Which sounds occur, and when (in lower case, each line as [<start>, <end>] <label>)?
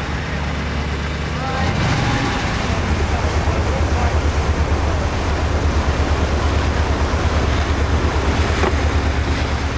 [0.00, 9.75] ship
[0.00, 9.75] water
[0.00, 9.75] wind
[1.32, 2.38] male speech
[3.27, 4.53] male speech
[8.57, 8.70] tap
[9.25, 9.41] tap